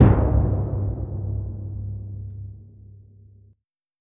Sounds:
Percussion, Drum, Musical instrument, Music

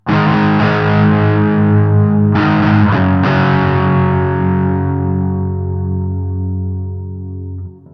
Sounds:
Plucked string instrument, Guitar, Musical instrument, Music

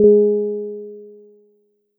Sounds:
Musical instrument, Music, Keyboard (musical), Piano

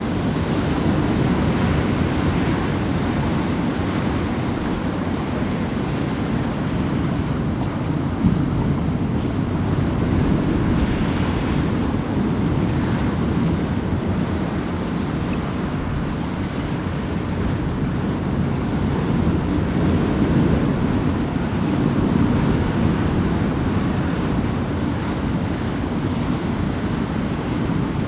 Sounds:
Water, Ocean, Waves

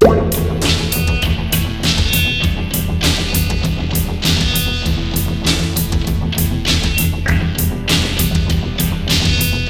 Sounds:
Guitar, Music, Plucked string instrument, Musical instrument

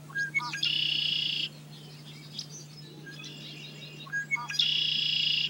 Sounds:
Animal, Wild animals, Bird

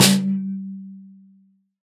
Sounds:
Percussion, Musical instrument, Drum, Music, Snare drum

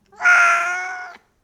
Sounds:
Meow, Animal, Cat, pets

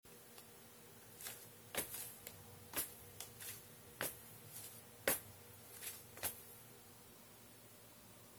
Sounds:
Walk

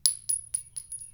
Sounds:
Glass, Chink

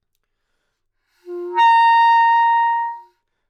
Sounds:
Music, Musical instrument, woodwind instrument

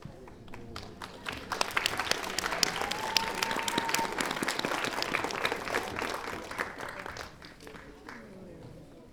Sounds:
Applause, Crowd, Human group actions

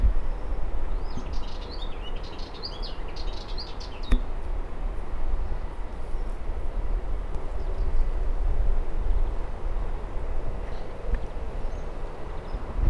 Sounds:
Wild animals, bird song, Bird, Animal

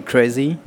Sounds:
Speech, Human voice

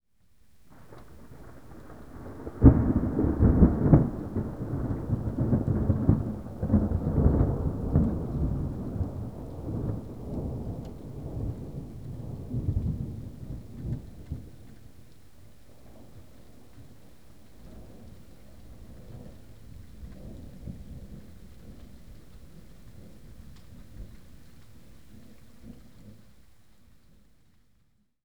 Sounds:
Thunder, Thunderstorm

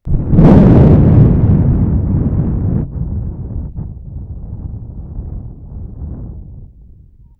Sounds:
Wind

